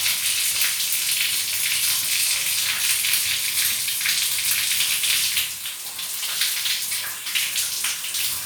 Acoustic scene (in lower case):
restroom